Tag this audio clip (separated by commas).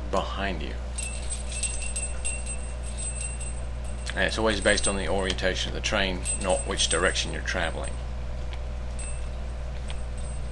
Train, Speech